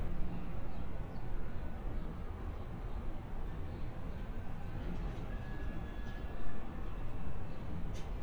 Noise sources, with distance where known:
background noise

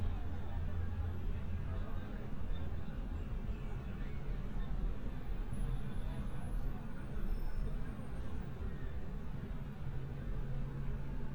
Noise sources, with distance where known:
engine of unclear size

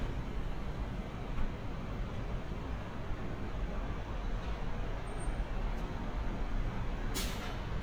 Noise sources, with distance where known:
non-machinery impact, near

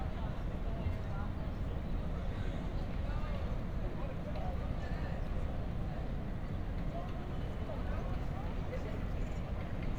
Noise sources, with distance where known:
person or small group talking, far

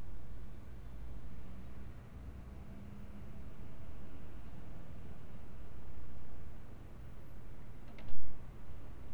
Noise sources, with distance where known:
background noise

